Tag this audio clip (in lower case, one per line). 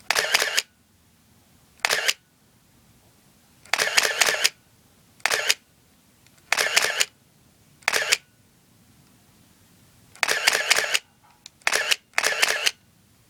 mechanisms
camera